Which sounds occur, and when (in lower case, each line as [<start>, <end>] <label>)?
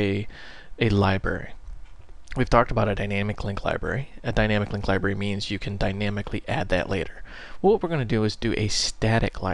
[0.00, 9.53] background noise
[0.01, 0.23] man speaking
[0.24, 0.63] breathing
[0.75, 1.44] man speaking
[2.14, 4.02] man speaking
[4.21, 7.19] man speaking
[7.21, 7.51] breathing
[7.56, 9.53] man speaking